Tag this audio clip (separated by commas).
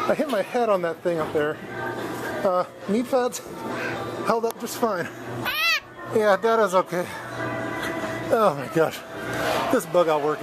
inside a large room or hall, Speech, Music